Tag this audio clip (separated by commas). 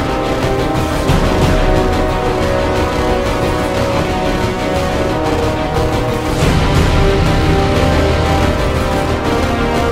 Music, Video game music